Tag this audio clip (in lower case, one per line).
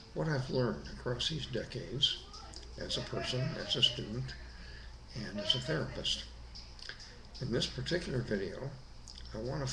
speech